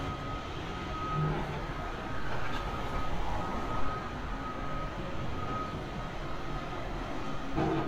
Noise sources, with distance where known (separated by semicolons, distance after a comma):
reverse beeper